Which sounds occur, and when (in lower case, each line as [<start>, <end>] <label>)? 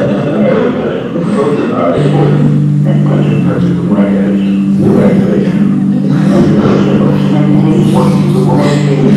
[0.00, 9.15] speech babble